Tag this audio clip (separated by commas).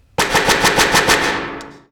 gunfire, Explosion